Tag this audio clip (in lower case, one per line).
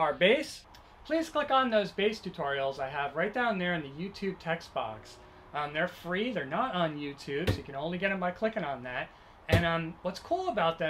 speech